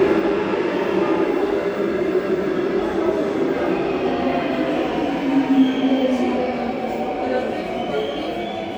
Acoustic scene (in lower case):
subway station